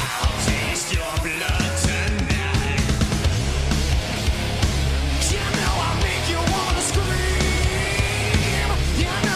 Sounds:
Music, Musical instrument

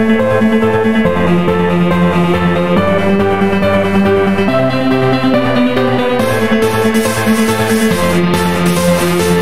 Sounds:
Electronic music, Music

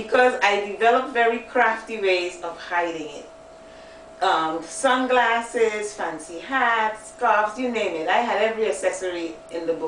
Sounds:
Speech

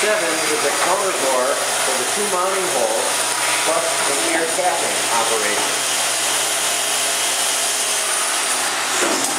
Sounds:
inside a large room or hall, Speech

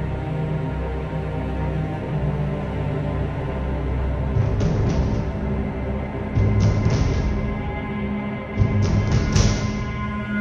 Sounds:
Music, Scary music

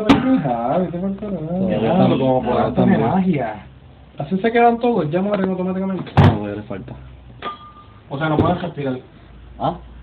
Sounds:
Speech, inside a small room

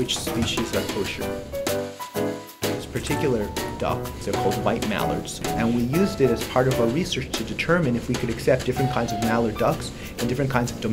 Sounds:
Music, Speech

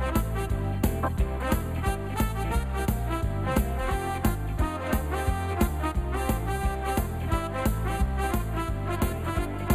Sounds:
Music

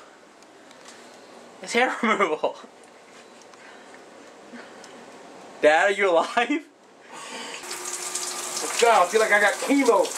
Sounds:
Water

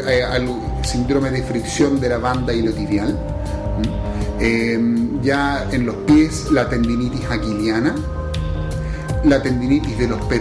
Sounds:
Speech, inside a small room, Music

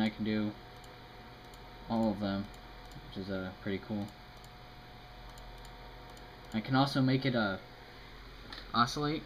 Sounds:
Speech

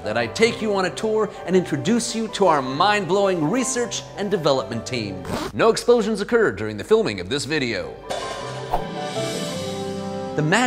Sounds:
Music, Speech

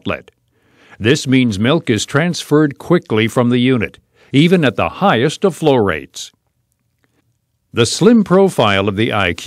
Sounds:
Speech

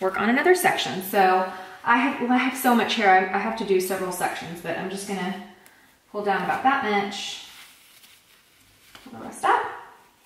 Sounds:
hair dryer drying

